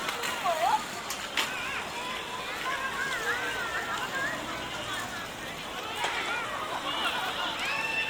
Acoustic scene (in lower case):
park